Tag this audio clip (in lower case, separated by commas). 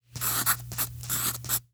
writing, domestic sounds